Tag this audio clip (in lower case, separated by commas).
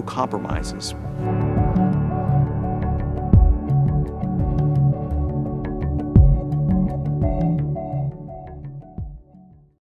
speech, music